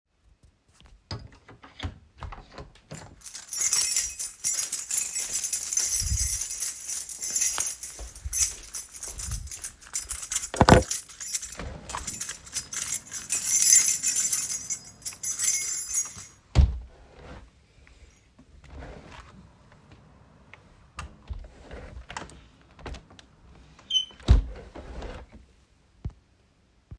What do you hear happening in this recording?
I closed and reopened the door of my room. Then I was looking for my keys in my trousers. After finding my keys, I opened the window.